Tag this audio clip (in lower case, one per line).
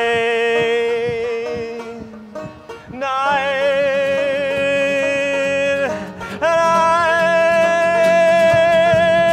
music